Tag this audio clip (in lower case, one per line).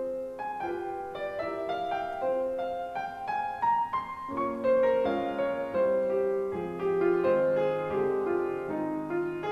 music